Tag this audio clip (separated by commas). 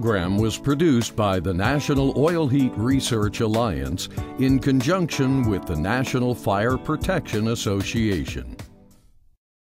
Speech, Music